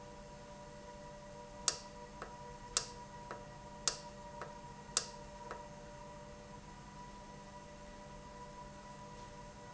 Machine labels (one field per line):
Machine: valve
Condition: normal